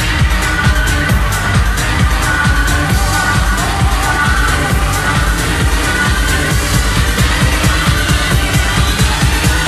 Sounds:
music

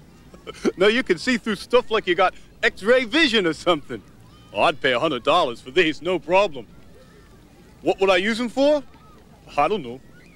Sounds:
speech

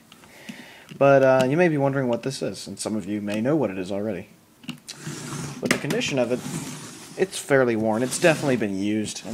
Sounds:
speech

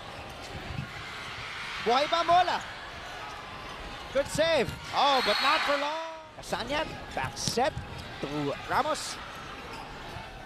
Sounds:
playing volleyball

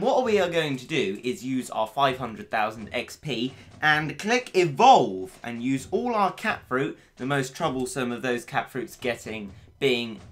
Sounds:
speech

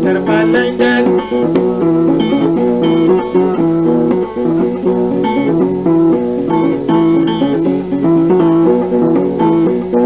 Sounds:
music
musical instrument

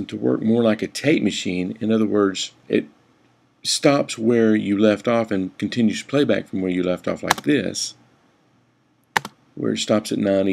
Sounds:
speech

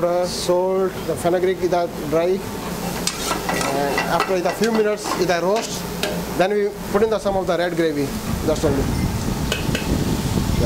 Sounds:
speech

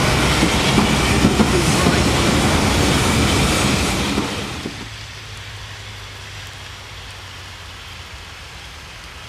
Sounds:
rail transport
train wagon
vehicle
train

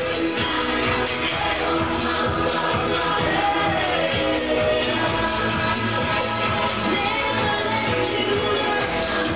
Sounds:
music

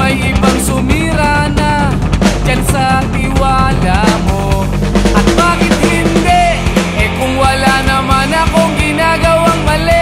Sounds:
rock music
music

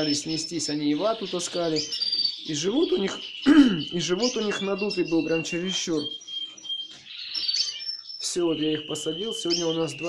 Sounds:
canary calling

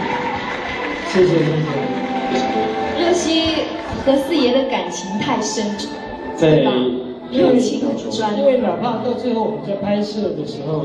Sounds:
speech
music

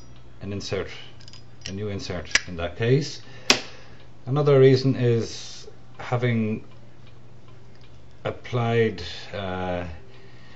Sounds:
speech

